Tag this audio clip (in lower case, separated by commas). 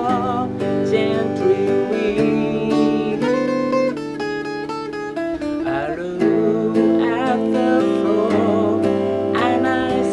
musical instrument, plucked string instrument, music, guitar